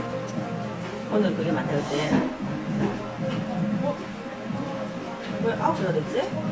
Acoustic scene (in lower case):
cafe